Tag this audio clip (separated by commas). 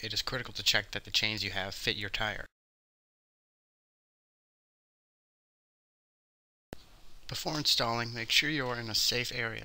Speech